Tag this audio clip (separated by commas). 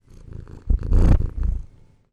Animal, Cat, Purr, pets